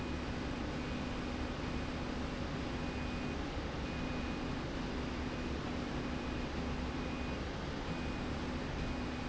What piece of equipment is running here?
slide rail